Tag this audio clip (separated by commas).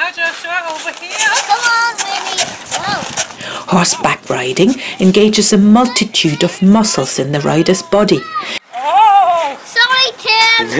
Speech, kid speaking